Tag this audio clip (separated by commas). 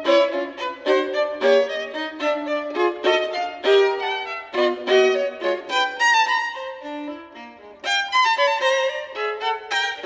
Violin, Bowed string instrument